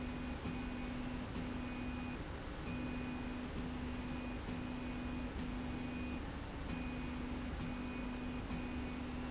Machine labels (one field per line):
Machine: slide rail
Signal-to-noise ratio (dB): 0 dB